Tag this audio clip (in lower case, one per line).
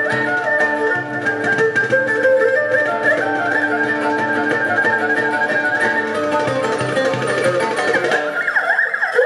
playing erhu